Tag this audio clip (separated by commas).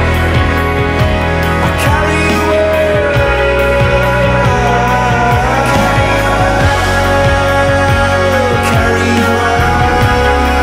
Sampler, Music